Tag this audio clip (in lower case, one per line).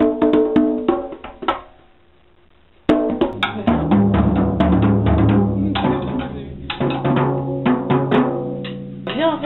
funny music
music
speech